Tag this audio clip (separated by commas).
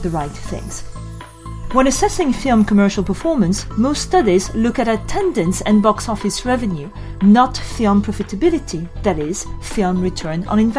monologue